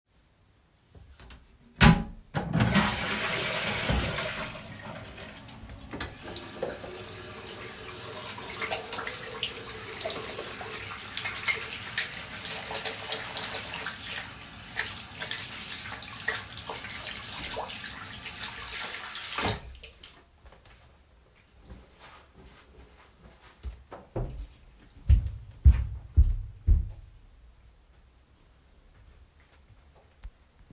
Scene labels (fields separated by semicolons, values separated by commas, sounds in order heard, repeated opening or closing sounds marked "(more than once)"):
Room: hallway; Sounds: toilet flushing, running water, footsteps